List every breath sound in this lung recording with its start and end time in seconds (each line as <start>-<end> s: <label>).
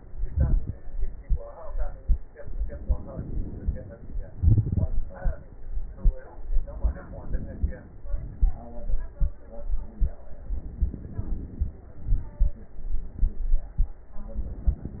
2.35-4.24 s: inhalation
4.25-5.15 s: exhalation
4.25-5.15 s: crackles
6.32-8.01 s: inhalation
7.98-9.18 s: exhalation
10.33-11.93 s: inhalation
11.93-12.82 s: exhalation
11.93-12.82 s: crackles